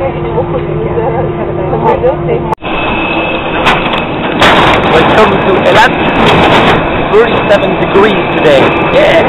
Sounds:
jet engine, speech

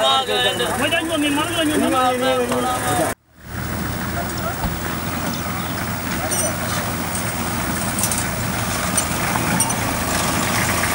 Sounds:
vehicle, speech

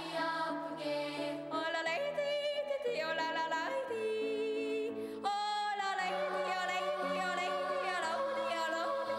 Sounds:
yodelling

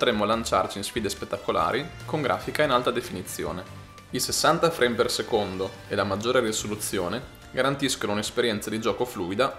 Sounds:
speech, music

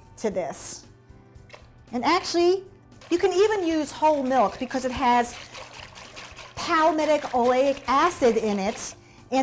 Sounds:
speech, pour, music

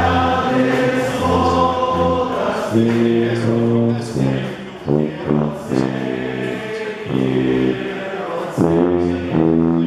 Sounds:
female singing, music, choir, male singing

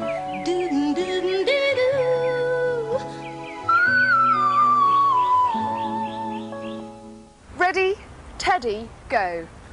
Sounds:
music, speech

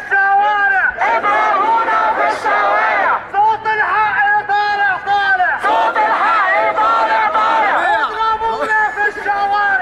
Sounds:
chatter, speech

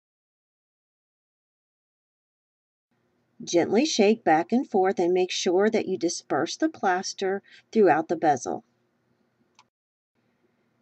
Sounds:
speech

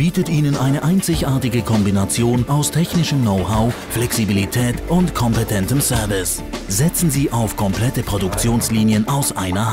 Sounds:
music, speech

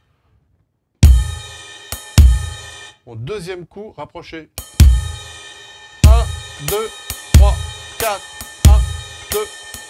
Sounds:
playing bass drum

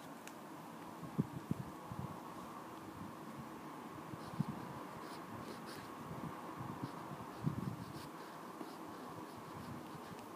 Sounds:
writing

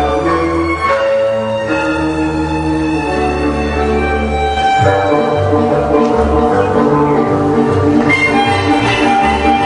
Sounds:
dance music, folk music, music

